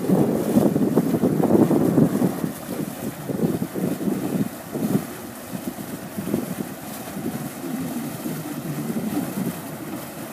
Wind blows, a boat engine runs and water slashes